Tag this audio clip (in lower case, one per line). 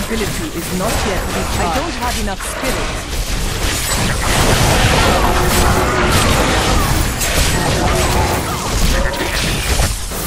speech